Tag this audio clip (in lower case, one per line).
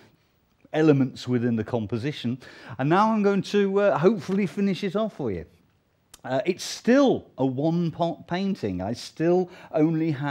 speech